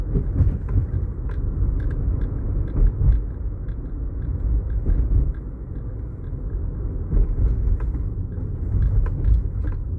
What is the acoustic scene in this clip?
car